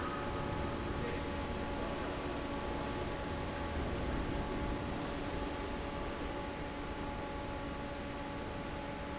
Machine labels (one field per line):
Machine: fan